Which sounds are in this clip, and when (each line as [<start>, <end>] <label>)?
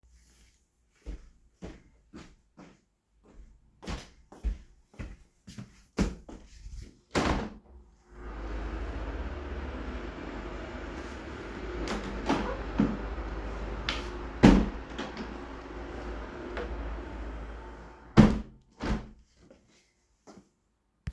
[1.04, 2.81] footsteps
[3.84, 6.87] footsteps
[7.06, 7.82] window
[14.22, 14.91] window
[18.03, 19.14] window